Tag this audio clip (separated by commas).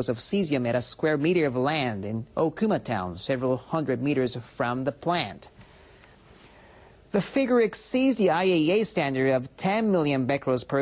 Speech